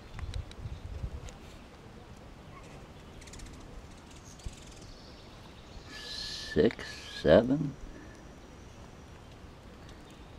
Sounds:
Speech

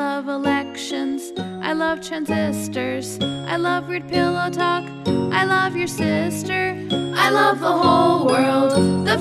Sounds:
Music for children, Music

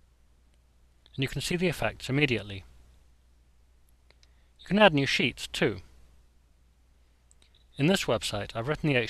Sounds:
Speech

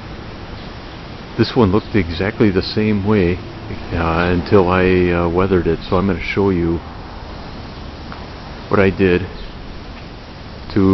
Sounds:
Speech

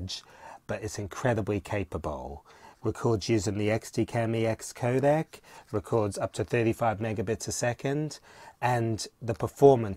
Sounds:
Speech

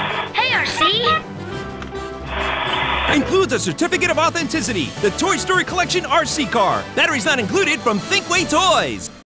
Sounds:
Music, Speech

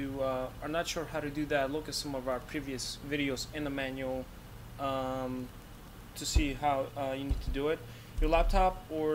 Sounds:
Speech

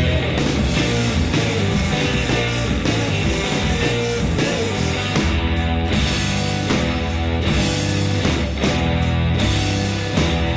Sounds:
Music, Rock music

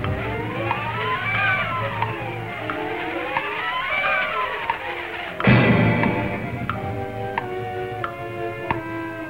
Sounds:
Music

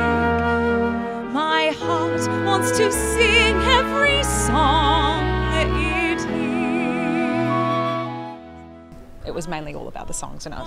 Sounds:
Speech, Music

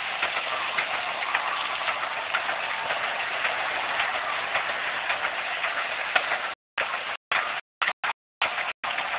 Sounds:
Engine, Heavy engine (low frequency)

